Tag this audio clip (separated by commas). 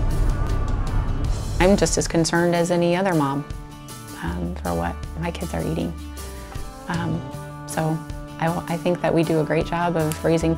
Music, Speech